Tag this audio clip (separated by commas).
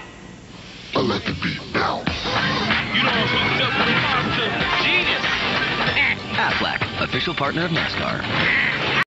Music, Quack, Speech